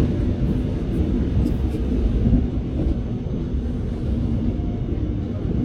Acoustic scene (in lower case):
subway train